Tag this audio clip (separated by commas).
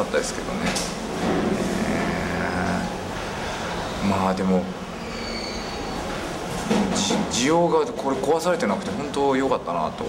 Narration, Speech